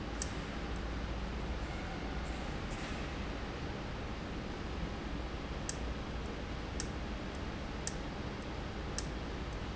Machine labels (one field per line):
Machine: valve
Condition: abnormal